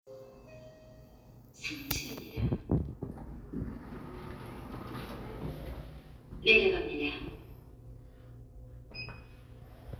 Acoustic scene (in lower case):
elevator